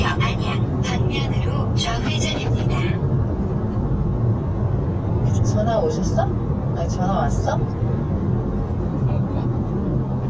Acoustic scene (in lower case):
car